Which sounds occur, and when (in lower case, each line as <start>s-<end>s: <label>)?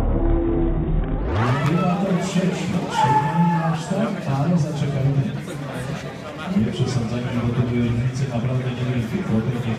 0.0s-1.2s: sound effect
0.0s-9.7s: crowd
1.0s-1.1s: tick
1.3s-1.9s: shout
1.4s-2.8s: man speaking
1.6s-1.7s: tick
2.9s-3.8s: shout
2.9s-5.4s: man speaking
6.4s-9.7s: man speaking